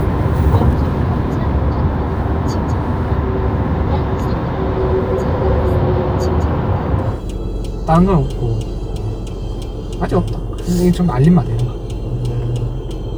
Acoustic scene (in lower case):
car